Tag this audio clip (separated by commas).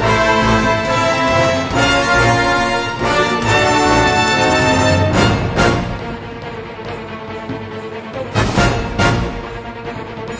Music